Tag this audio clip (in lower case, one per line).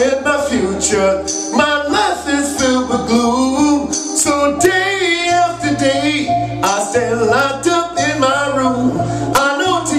music